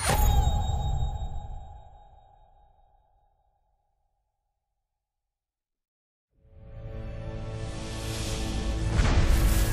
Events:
0.0s-0.5s: human voice
0.0s-5.4s: sound effect
6.2s-9.7s: audio logo

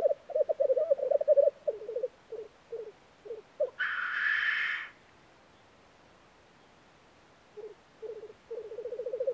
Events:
0.0s-2.1s: bird
0.0s-9.3s: background noise
2.2s-2.5s: bird
2.7s-2.9s: bird
3.2s-3.7s: bird
3.7s-4.9s: animal
7.5s-7.7s: bird
8.0s-8.3s: bird
8.5s-9.3s: bird

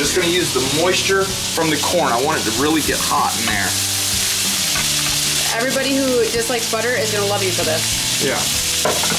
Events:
0.0s-8.4s: conversation
0.0s-9.1s: music
0.0s-9.1s: sizzle
5.5s-7.8s: female speech
8.2s-8.4s: man speaking

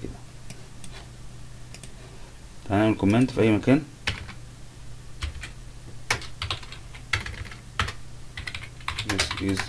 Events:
0.0s-9.6s: mechanisms
0.4s-0.6s: clicking
0.7s-0.9s: clicking
1.7s-1.9s: clicking
2.7s-3.8s: male speech
3.0s-3.3s: clicking
4.0s-4.3s: computer keyboard
5.2s-5.6s: computer keyboard
6.1s-7.0s: computer keyboard
7.1s-7.6s: computer keyboard
7.7s-8.0s: computer keyboard
8.3s-8.7s: computer keyboard
8.8s-9.6s: computer keyboard
9.0s-9.6s: male speech

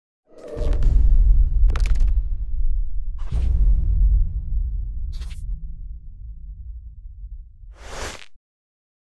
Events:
0.2s-8.4s: stomach rumble
0.2s-0.7s: sound effect
0.4s-0.7s: generic impact sounds
0.8s-0.9s: generic impact sounds
1.6s-2.1s: generic impact sounds
3.2s-3.5s: scrape
5.1s-5.4s: scrape
7.7s-8.3s: scrape

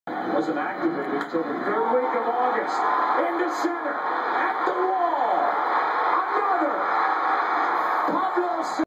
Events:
0.0s-8.8s: hubbub
0.0s-8.8s: mechanisms
0.0s-8.8s: television
0.2s-2.9s: male speech
3.1s-4.0s: male speech
4.3s-5.4s: male speech
6.1s-6.7s: male speech
8.0s-8.8s: male speech

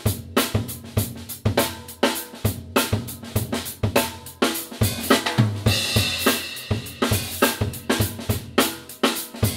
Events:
0.0s-9.5s: music

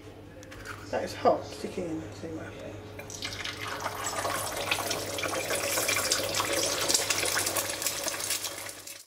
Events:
0.0s-0.5s: human voice
0.0s-9.0s: mechanisms
0.4s-0.5s: tick
0.5s-0.8s: scrape
0.8s-2.0s: female speech
1.3s-1.8s: surface contact
2.1s-2.2s: surface contact
2.1s-2.7s: female speech
2.4s-2.7s: man speaking
2.5s-2.6s: generic impact sounds
3.0s-3.0s: tick
3.1s-9.0s: frying (food)

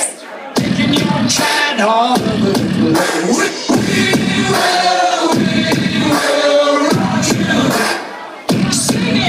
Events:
0.0s-9.2s: music
0.5s-7.4s: male singing
8.7s-9.2s: female singing

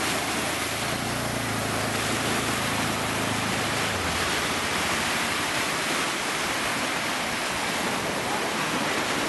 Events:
0.0s-9.2s: waves
0.7s-3.9s: mechanisms
8.2s-8.5s: human voice

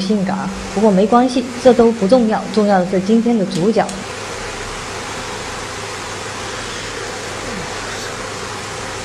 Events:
0.0s-0.6s: woman speaking
0.0s-9.0s: mechanisms
0.7s-3.8s: woman speaking
3.5s-3.9s: generic impact sounds

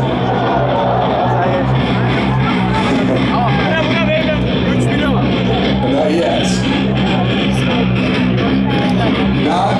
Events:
0.0s-9.7s: speech babble
0.0s-9.7s: music
1.2s-1.6s: male speech
3.3s-4.3s: male speech
4.7s-5.1s: male speech
5.8s-6.6s: male speech
8.9s-9.0s: tick
9.4s-9.7s: male speech

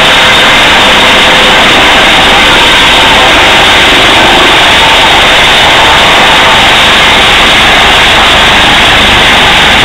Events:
0.0s-9.8s: helicopter

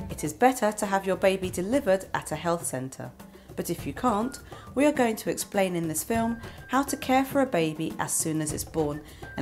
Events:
0.0s-3.1s: female speech
0.0s-9.4s: music
3.3s-3.5s: breathing
3.4s-4.3s: female speech
4.4s-4.7s: breathing
4.7s-6.4s: female speech
6.4s-6.6s: breathing
6.6s-9.0s: female speech
9.0s-9.3s: breathing

